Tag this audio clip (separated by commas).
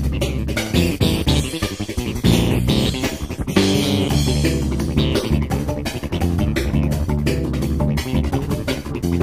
Music